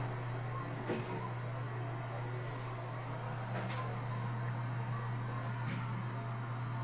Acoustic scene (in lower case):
elevator